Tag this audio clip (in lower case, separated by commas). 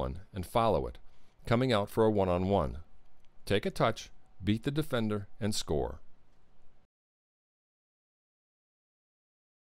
speech